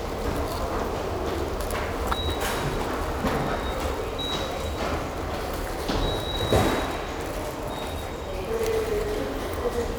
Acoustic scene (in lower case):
subway station